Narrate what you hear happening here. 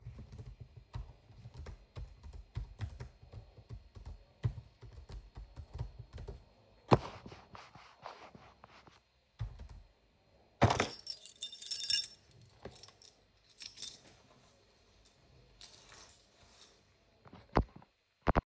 I was typing on my keyboard, moved the mouse, and then picked up my keychain from the desk.